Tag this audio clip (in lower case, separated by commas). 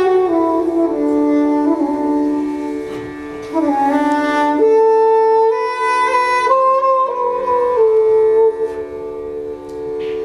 flute, music, wind instrument, playing flute